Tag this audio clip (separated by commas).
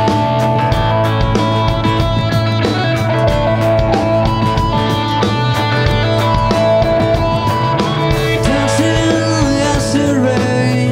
Music